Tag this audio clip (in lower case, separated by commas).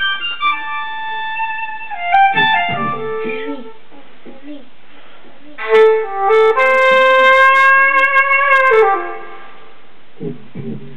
speech, sampler, music